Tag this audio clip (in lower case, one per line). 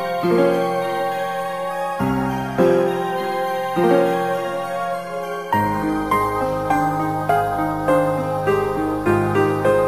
music